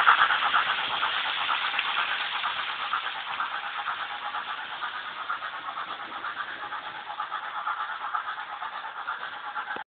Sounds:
swoosh

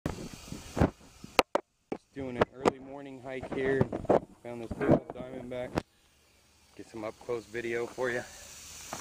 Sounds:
snake rattling

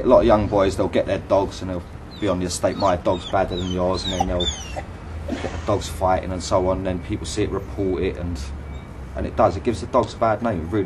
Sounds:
Domestic animals, Dog, outside, urban or man-made, Animal, Speech

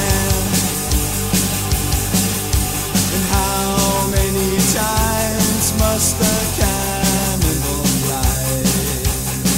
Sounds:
Music

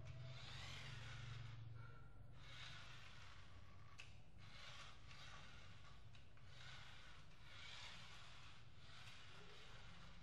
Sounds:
Car passing by

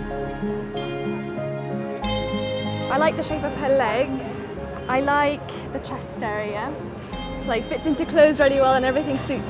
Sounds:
Music, Speech

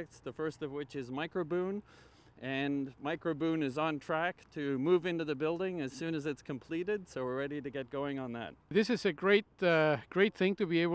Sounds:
Speech

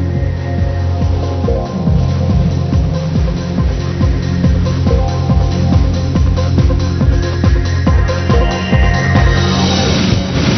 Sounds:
Music

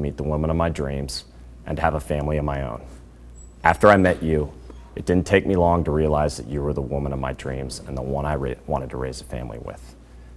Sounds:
Speech

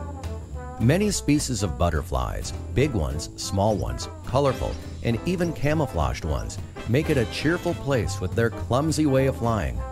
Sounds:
Music, Speech

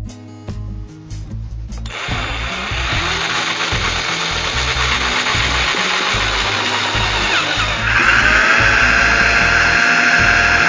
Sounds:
Tools, Music

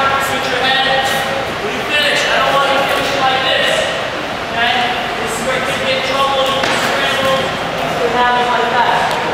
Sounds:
Speech, inside a large room or hall

